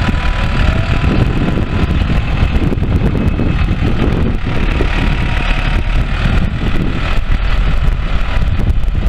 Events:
[0.00, 9.05] heavy engine (low frequency)
[0.00, 9.05] wind noise (microphone)

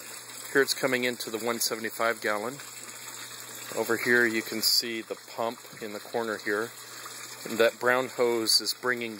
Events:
[0.00, 9.15] background noise
[0.00, 9.15] water
[0.49, 2.60] man speaking
[3.64, 5.14] man speaking
[5.29, 5.46] man speaking
[5.75, 6.78] man speaking
[7.50, 9.15] man speaking

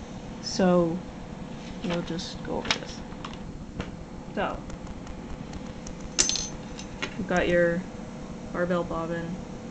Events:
[0.00, 9.70] mechanisms
[0.41, 0.95] female speech
[1.45, 2.10] generic impact sounds
[1.78, 3.00] female speech
[2.60, 2.87] generic impact sounds
[2.63, 2.71] tick
[3.19, 3.43] generic impact sounds
[3.76, 3.83] tick
[4.32, 4.61] female speech
[4.67, 4.73] tick
[4.82, 4.88] tick
[5.03, 5.08] tick
[5.49, 5.55] tick
[5.64, 5.70] tick
[5.83, 5.88] tick
[5.97, 6.02] tick
[6.12, 6.52] generic impact sounds
[6.76, 6.82] tick
[7.01, 7.07] tick
[7.11, 7.79] female speech
[7.33, 7.38] tick
[8.48, 9.33] female speech

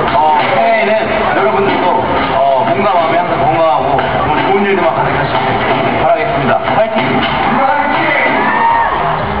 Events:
[0.00, 9.40] crowd
[0.00, 9.40] male speech

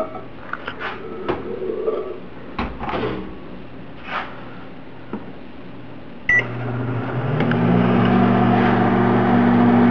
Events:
[0.00, 0.23] generic impact sounds
[0.00, 6.27] mechanisms
[0.36, 1.01] generic impact sounds
[1.27, 1.42] generic impact sounds
[2.58, 3.24] generic impact sounds
[3.98, 4.29] generic impact sounds
[5.06, 5.27] generic impact sounds
[6.27, 6.43] beep
[6.29, 9.90] microwave oven
[7.01, 7.14] tick
[7.38, 7.58] generic impact sounds
[7.99, 8.09] generic impact sounds

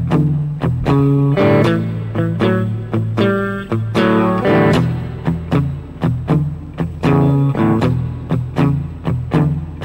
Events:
[0.00, 9.84] background noise
[0.00, 9.84] music

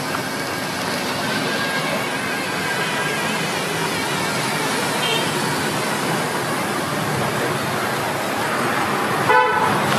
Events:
[0.00, 9.95] mechanisms
[0.10, 0.17] generic impact sounds
[4.97, 5.22] mechanisms
[5.00, 5.22] vehicle horn
[9.25, 9.66] vehicle horn
[9.86, 9.94] generic impact sounds

